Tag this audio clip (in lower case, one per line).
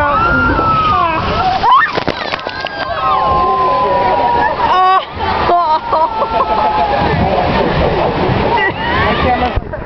water